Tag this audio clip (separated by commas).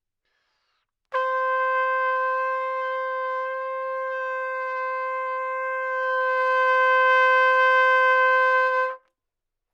Music, Musical instrument, Trumpet, Brass instrument